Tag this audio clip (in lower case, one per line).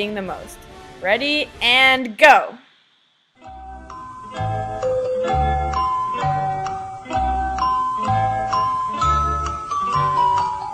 speech
music
inside a small room